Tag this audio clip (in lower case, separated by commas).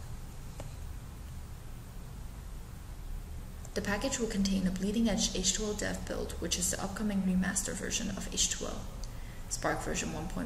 speech